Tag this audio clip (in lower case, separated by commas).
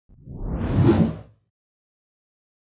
swoosh